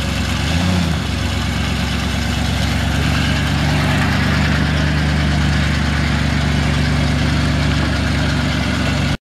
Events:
0.0s-9.2s: motor vehicle (road)
0.4s-0.9s: accelerating

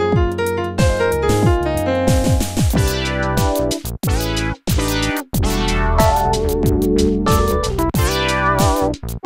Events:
0.0s-9.2s: music

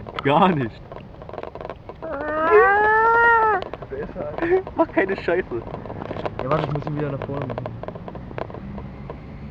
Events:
0.0s-1.0s: generic impact sounds
0.0s-9.5s: wind
0.2s-0.7s: man speaking
1.1s-3.8s: generic impact sounds
2.0s-3.6s: shout
3.9s-5.6s: man speaking
4.0s-4.1s: generic impact sounds
4.3s-9.2s: generic impact sounds
6.2s-7.6s: man speaking

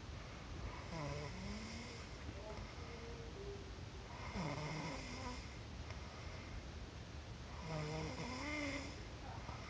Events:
0.0s-9.6s: mechanisms
0.6s-2.1s: snoring
2.3s-3.7s: speech
2.5s-2.6s: tick
2.6s-3.2s: breathing
4.1s-5.7s: snoring
5.8s-6.0s: tick
5.9s-6.7s: breathing
7.5s-9.0s: snoring
9.2s-9.5s: human voice
9.3s-9.6s: breathing

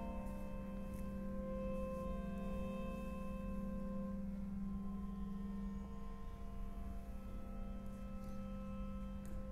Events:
0.0s-9.5s: background noise
0.0s-9.5s: music
0.9s-1.0s: tick
8.2s-8.3s: tick
9.2s-9.3s: tick

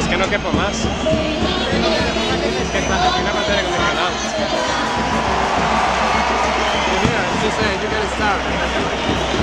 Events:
0.0s-0.3s: fireworks
0.0s-9.4s: background noise
0.6s-0.8s: fireworks
1.2s-1.6s: fireworks
2.1s-2.5s: fireworks
2.8s-3.1s: fireworks
3.4s-4.0s: fireworks
4.2s-4.8s: fireworks
5.1s-5.6s: fireworks
5.9s-6.4s: fireworks
6.7s-9.4s: fireworks

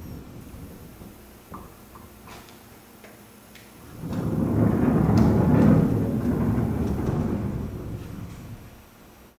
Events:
0.0s-0.2s: squeal
0.0s-9.3s: mechanisms
2.3s-2.5s: walk
3.9s-8.7s: sliding door
5.2s-5.3s: tick
8.3s-8.4s: generic impact sounds

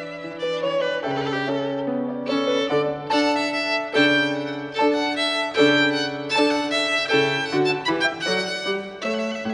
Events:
0.0s-9.5s: music

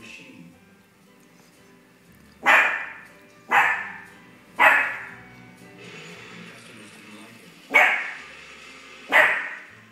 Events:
0.0s-0.5s: man speaking
0.0s-9.9s: music
1.1s-1.2s: generic impact sounds
1.3s-1.7s: generic impact sounds
2.1s-2.4s: generic impact sounds
2.4s-3.0s: bark
3.0s-3.4s: generic impact sounds
3.4s-4.2s: bark
4.0s-4.1s: generic impact sounds
4.5s-5.3s: bark
5.3s-5.7s: generic impact sounds
5.7s-9.9s: mechanisms
6.4s-7.2s: man speaking
7.7s-8.3s: bark
9.0s-9.7s: bark

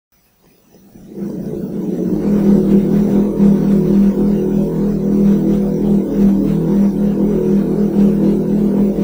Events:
0.1s-9.0s: background noise
0.9s-9.0s: hum

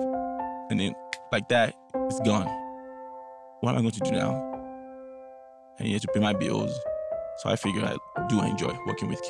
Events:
0.0s-9.2s: music
0.7s-0.9s: male speech
1.1s-1.2s: tick
1.3s-1.8s: male speech
2.1s-2.6s: male speech
3.6s-4.4s: male speech
5.7s-6.9s: male speech
7.3s-8.0s: male speech
8.3s-8.7s: male speech
8.9s-9.2s: male speech

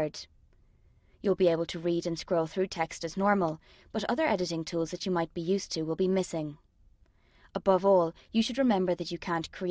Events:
0.0s-0.2s: woman speaking
0.0s-9.7s: background noise
1.2s-3.6s: woman speaking
3.6s-3.9s: breathing
3.9s-6.6s: woman speaking
7.0s-7.6s: breathing
7.5s-9.7s: woman speaking

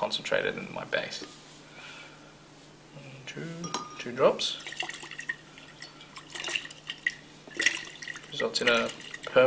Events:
0.0s-1.3s: male speech
0.0s-9.4s: mechanisms
1.2s-1.4s: glass
1.7s-2.3s: breathing
2.9s-3.7s: male speech
3.6s-4.0s: glass
4.0s-4.7s: male speech
4.5s-5.4s: dribble
5.3s-6.2s: breathing
5.5s-5.9s: dribble
6.0s-7.2s: dribble
7.4s-9.3s: dribble
8.3s-8.9s: male speech

